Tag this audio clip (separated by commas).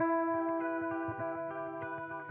Plucked string instrument, Music, Musical instrument, Electric guitar, Guitar